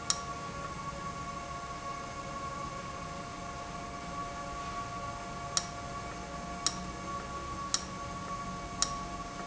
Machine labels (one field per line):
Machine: valve